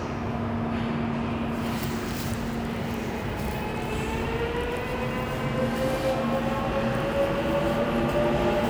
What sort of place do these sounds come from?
subway station